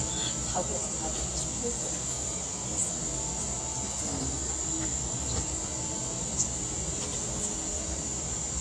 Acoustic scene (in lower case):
cafe